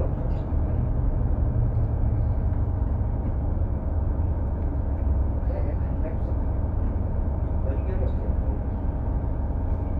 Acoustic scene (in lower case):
bus